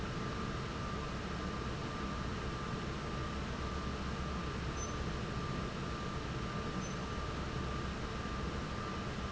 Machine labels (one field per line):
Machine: fan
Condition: normal